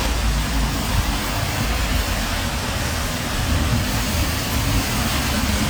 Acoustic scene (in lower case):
street